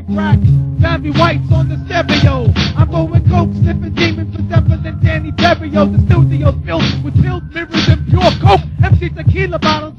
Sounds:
Music, pop

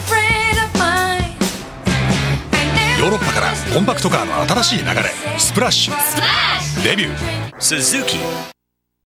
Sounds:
Speech, Music

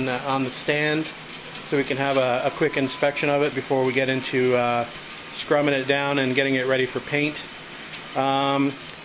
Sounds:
Speech, Engine

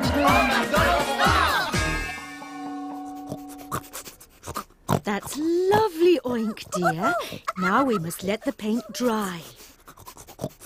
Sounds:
Music, Speech

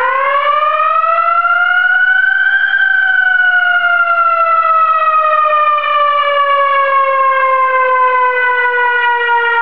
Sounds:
Police car (siren), Siren

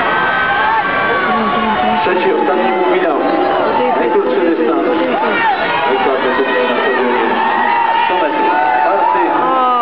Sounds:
Speech, outside, urban or man-made

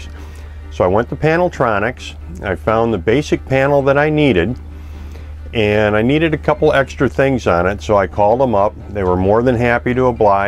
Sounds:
Speech, Music

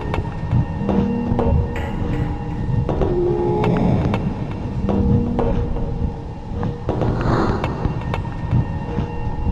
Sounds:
Music

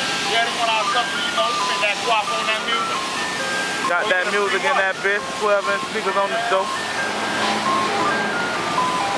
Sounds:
Speech, Vehicle, Music, Car

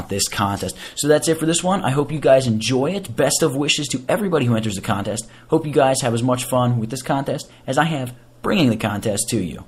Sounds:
monologue, Speech, Speech synthesizer

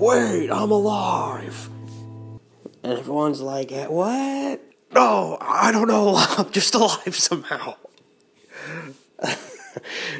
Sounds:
Speech

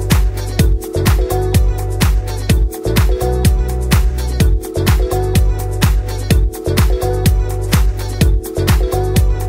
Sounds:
Exciting music, Music

